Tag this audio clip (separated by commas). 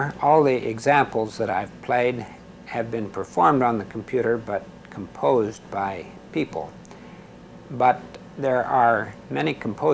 Speech